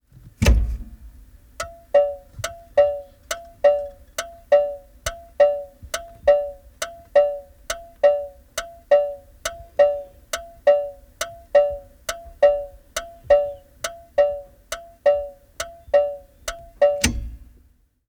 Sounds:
vehicle, motor vehicle (road)

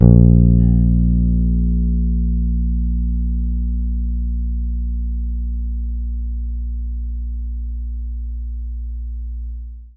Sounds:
plucked string instrument, music, bass guitar, guitar, musical instrument

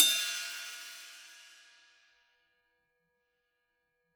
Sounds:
hi-hat, musical instrument, percussion, cymbal, music

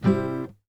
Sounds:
music, plucked string instrument, musical instrument, guitar

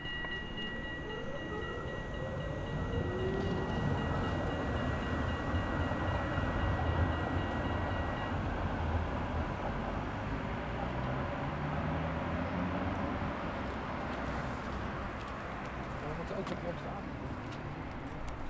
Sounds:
motor vehicle (road), vehicle

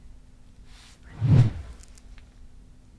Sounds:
swoosh

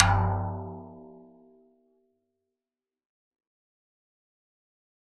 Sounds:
percussion, musical instrument, music, drum

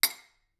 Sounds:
domestic sounds, cutlery

